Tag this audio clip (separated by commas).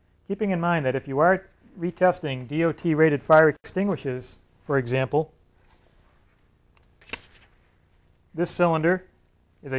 Speech